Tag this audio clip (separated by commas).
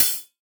Percussion, Hi-hat, Cymbal, Musical instrument, Music